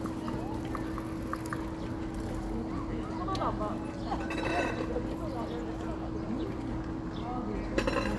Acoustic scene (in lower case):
park